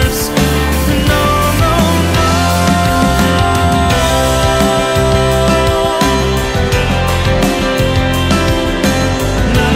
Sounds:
singing

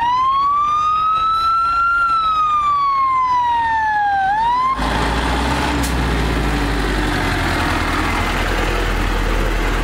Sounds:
emergency vehicle, fire engine, siren

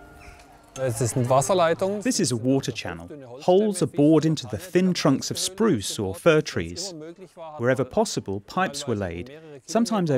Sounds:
music, speech

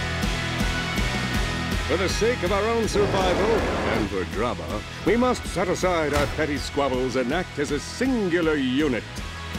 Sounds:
speech, music

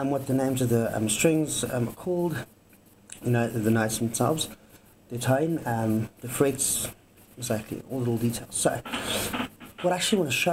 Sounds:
speech

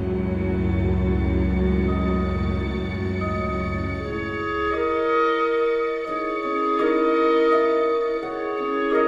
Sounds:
music

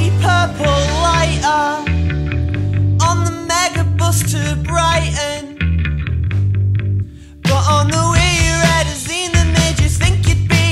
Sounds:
music

